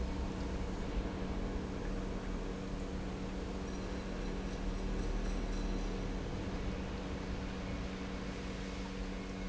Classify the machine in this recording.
pump